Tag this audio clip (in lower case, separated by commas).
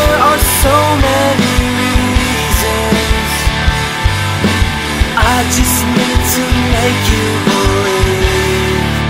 grunge